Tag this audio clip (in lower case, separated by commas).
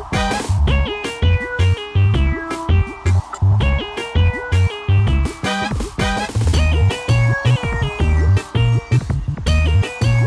theme music, music